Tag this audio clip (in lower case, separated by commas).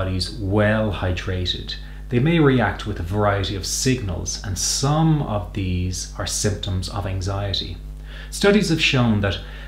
speech